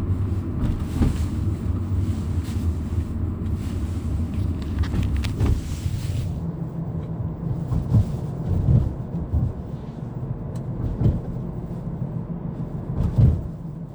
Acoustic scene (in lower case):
car